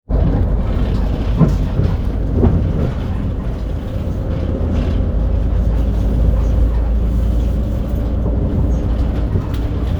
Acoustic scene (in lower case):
bus